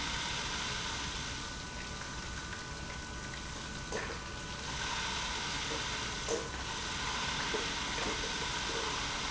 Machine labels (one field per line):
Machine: pump